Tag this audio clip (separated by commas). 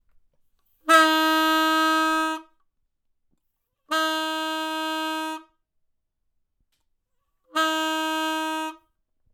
Motor vehicle (road), honking, Vehicle, Car, Alarm